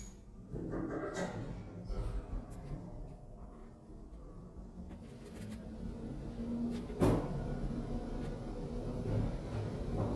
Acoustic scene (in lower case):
elevator